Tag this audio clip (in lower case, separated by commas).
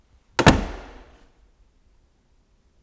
domestic sounds, slam, door